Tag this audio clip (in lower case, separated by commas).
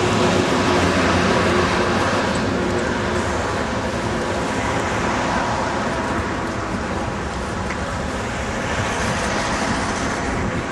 roadway noise, vehicle, motor vehicle (road), engine, car